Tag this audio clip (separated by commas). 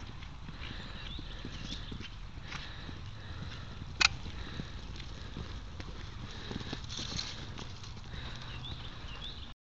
horse clip-clop, Clip-clop